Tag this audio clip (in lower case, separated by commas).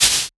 music, percussion, rattle (instrument), musical instrument